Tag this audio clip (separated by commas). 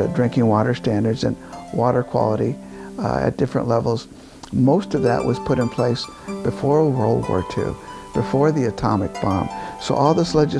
Music, Speech